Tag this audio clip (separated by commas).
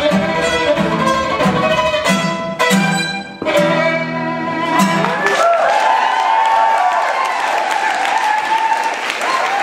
Music, Musical instrument, fiddle, Bowed string instrument